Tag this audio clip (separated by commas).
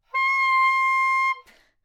Musical instrument, Music, Wind instrument